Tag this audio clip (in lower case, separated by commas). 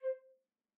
woodwind instrument, music, musical instrument